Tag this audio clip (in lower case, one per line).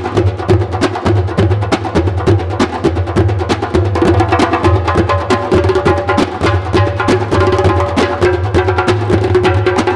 percussion
music